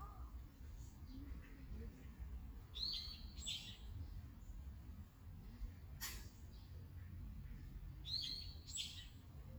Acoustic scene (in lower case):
park